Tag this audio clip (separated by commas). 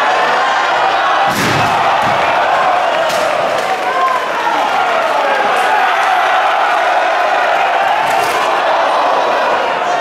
Speech